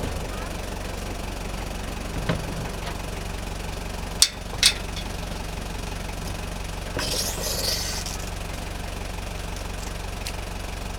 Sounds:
vehicle
motorboat

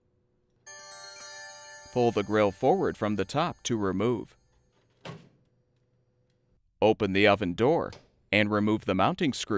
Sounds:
music
speech

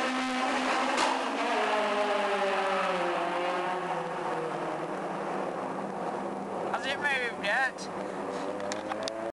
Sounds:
speech

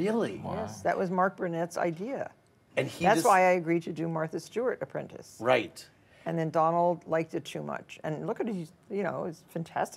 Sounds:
speech

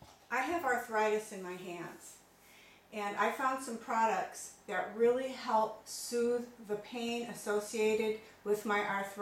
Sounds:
speech

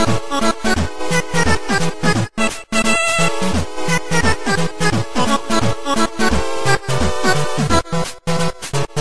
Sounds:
music
happy music

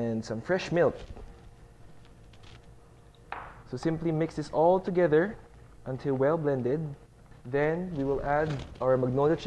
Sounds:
speech

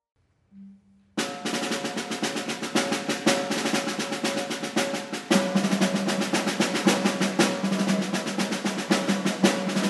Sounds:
music
percussion

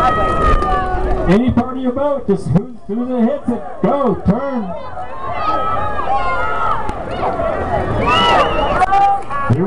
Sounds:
speech
vehicle
boat

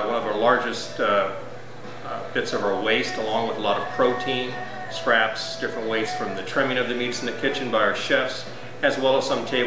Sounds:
speech
music

